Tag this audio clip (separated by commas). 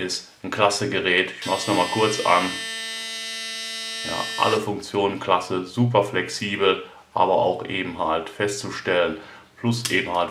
electric shaver